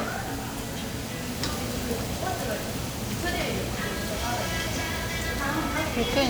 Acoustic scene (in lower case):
restaurant